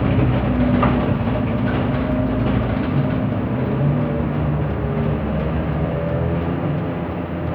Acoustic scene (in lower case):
bus